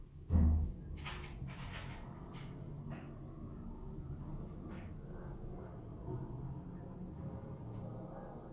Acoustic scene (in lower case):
elevator